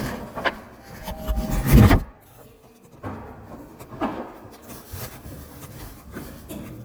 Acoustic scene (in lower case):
elevator